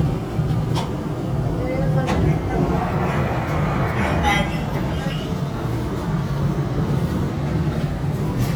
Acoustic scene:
subway train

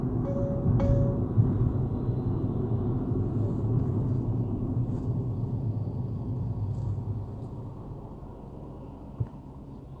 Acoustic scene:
car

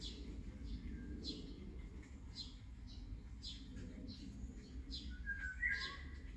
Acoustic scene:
park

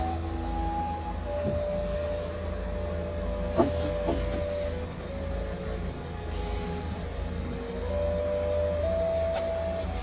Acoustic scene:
car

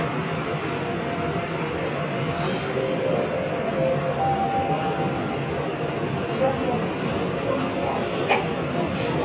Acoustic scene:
subway train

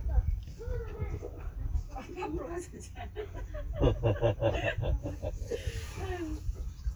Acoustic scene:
park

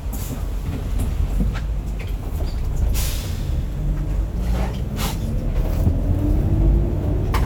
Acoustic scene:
bus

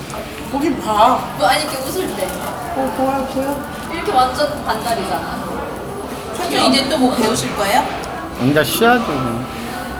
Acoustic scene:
cafe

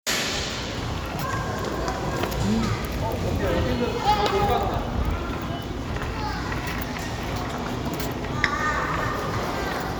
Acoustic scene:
crowded indoor space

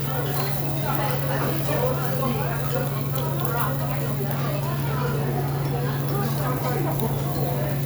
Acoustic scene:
restaurant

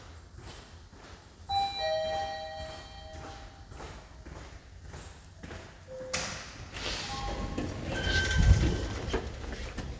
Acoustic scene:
elevator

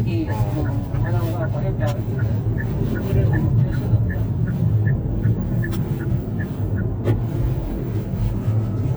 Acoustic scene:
car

